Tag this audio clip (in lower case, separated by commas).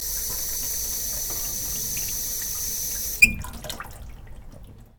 faucet, home sounds, sink (filling or washing)